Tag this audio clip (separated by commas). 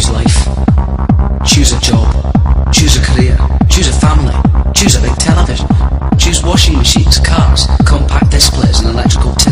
Techno, Electronic music, Music, Speech